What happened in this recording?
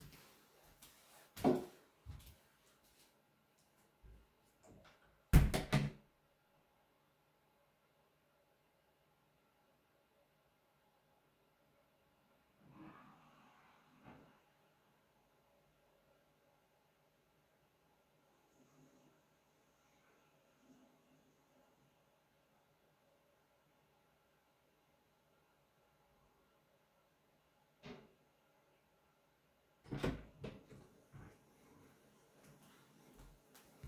Put phone in hallway, cloed door, flushed toilet, washed hands, opned door